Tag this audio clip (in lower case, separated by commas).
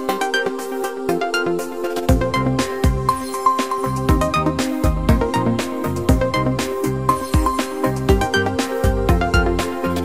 music